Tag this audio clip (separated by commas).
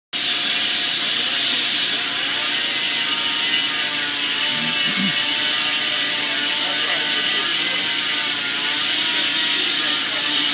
Steam